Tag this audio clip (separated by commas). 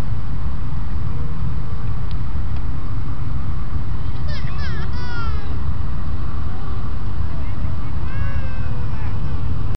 Speech